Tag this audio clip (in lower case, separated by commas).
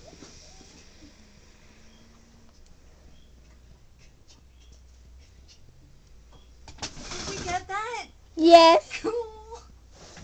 vehicle, outside, rural or natural, speech